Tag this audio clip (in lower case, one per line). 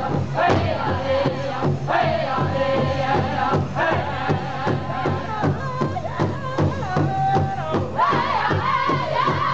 musical instrument
music
drum